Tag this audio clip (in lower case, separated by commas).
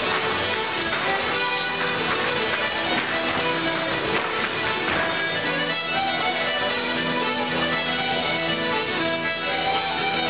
traditional music, music, dance music